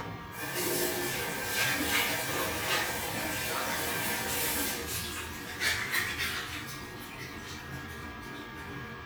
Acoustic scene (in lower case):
restroom